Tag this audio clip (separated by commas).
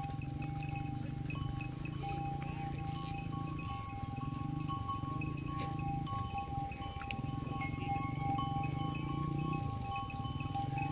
bovinae cowbell